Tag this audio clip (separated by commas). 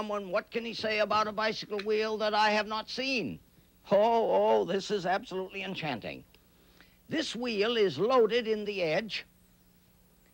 Speech